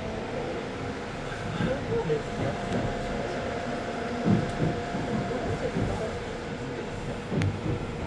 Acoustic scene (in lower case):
subway train